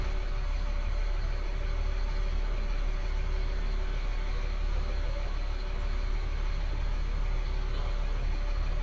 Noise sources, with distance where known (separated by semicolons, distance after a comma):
large-sounding engine, near